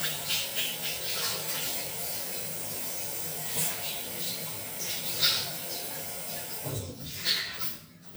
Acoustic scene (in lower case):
restroom